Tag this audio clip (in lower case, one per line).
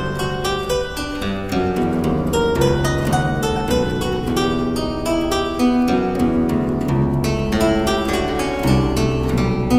keyboard (musical)
piano